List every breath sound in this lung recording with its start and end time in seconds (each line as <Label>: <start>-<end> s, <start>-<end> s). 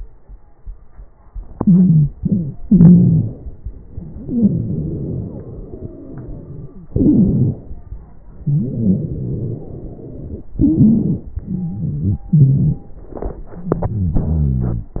Inhalation: 1.50-2.09 s, 2.68-3.56 s, 6.91-7.92 s, 8.44-10.51 s, 10.63-11.35 s, 12.32-13.15 s
Exhalation: 2.12-2.60 s, 4.12-6.90 s, 11.41-12.24 s, 13.18-14.92 s
Wheeze: 1.50-2.09 s, 2.12-2.60 s, 2.68-3.56 s, 4.12-6.90 s, 6.91-7.92 s, 8.44-10.51 s, 10.63-11.35 s, 11.41-12.24 s